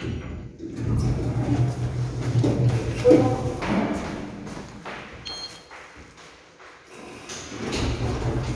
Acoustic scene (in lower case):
elevator